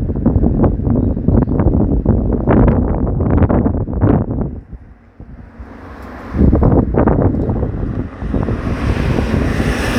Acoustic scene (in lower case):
street